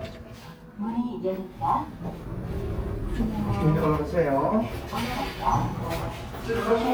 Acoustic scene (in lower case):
elevator